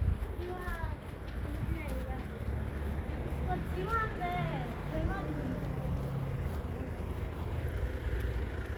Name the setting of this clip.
residential area